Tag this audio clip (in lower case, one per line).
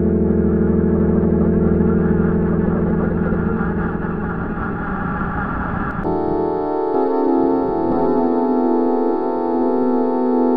drum
music
musical instrument